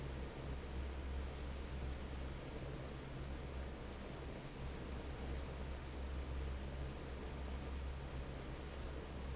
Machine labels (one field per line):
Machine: fan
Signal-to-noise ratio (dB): 6 dB